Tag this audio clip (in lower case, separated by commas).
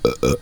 burping